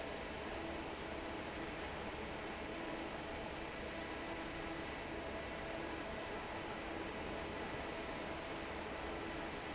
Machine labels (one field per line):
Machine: fan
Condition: normal